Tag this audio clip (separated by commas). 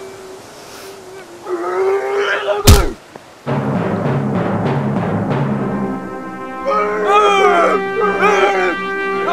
Music, Timpani, outside, rural or natural